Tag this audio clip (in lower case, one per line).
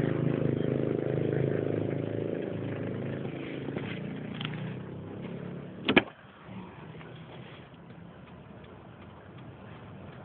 vehicle